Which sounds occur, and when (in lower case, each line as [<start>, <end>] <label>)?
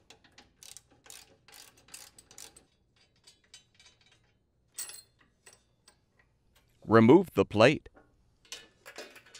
[0.00, 9.35] mechanisms
[0.01, 4.47] tools
[4.66, 6.30] tools
[6.47, 6.76] tools
[6.81, 7.80] man speaking
[7.82, 8.15] generic impact sounds
[8.32, 9.35] generic impact sounds